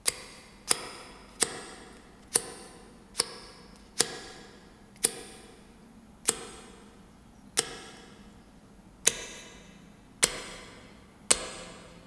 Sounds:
Tick

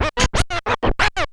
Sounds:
Scratching (performance technique), Musical instrument, Music

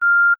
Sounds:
Telephone, Alarm

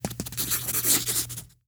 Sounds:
Writing, Domestic sounds

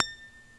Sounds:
Guitar, Music, Musical instrument, Acoustic guitar, Plucked string instrument

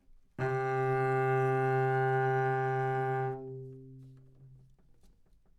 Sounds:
Musical instrument, Bowed string instrument, Music

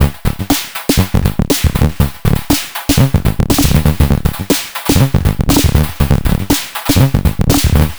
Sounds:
Music, Drum kit, Musical instrument, Percussion

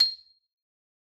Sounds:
Mallet percussion, Music, Musical instrument, Percussion, Marimba

